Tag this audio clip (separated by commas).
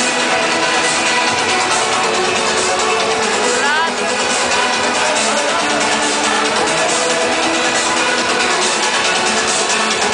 Speech, Music